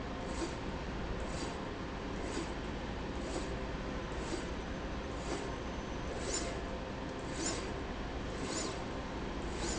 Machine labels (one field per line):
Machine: slide rail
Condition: abnormal